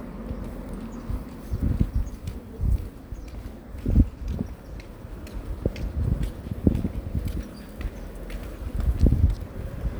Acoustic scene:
residential area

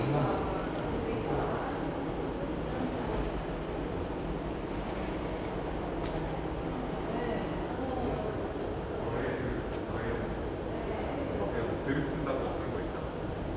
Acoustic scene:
subway station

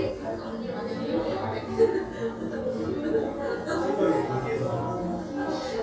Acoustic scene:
crowded indoor space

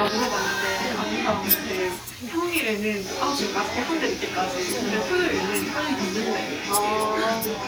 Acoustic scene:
restaurant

